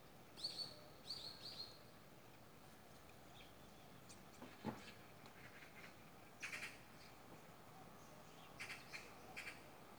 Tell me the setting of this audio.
park